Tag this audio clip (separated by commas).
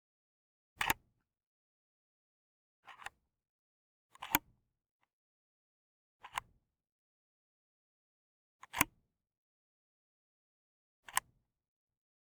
Camera, Mechanisms